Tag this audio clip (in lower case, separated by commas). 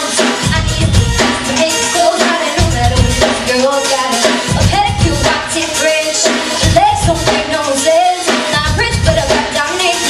female singing, rapping, music